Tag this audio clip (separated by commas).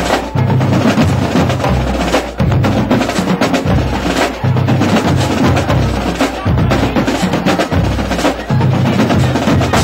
Speech, Percussion, Music